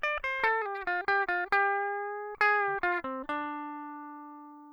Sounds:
guitar
music
plucked string instrument
musical instrument

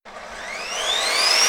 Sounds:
sawing
tools

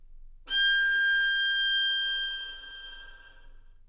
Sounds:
music
bowed string instrument
musical instrument

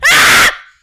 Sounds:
human voice
screaming

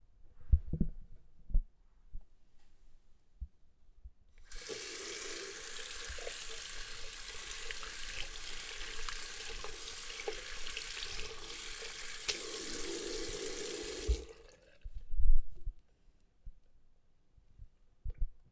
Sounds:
sink (filling or washing)
water tap
home sounds

